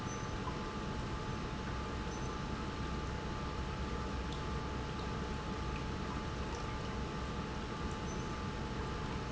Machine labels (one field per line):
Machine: pump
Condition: normal